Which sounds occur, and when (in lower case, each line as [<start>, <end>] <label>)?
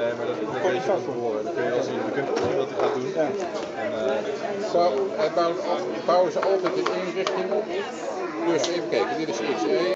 [0.00, 9.94] hubbub
[0.00, 9.94] mechanisms
[2.32, 2.47] generic impact sounds
[2.76, 2.98] generic impact sounds
[3.27, 3.66] generic impact sounds
[4.92, 5.00] tick
[6.28, 7.03] generic impact sounds
[7.24, 7.43] generic impact sounds
[7.68, 7.79] tick
[8.55, 8.80] generic impact sounds